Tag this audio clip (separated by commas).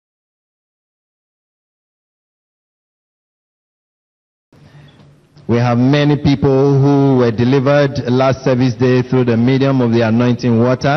Speech